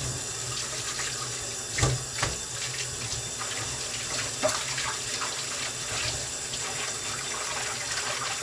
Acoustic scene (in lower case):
kitchen